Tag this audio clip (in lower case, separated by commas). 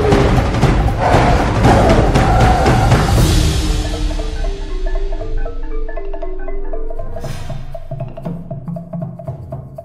music